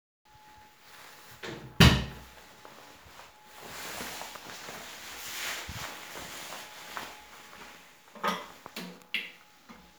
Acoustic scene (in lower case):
restroom